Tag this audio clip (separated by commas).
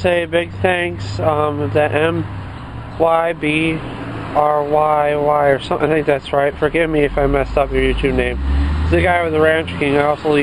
Speech